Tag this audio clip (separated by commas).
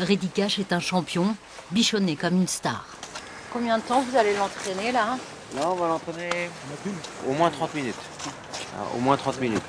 Speech